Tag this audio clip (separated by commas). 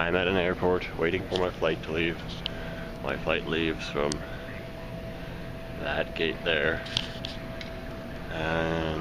Speech